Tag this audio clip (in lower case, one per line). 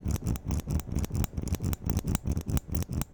mechanisms